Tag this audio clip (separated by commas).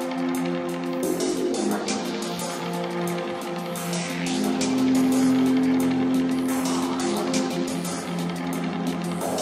Music